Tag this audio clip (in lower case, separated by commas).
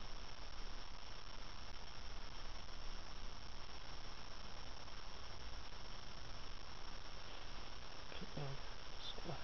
speech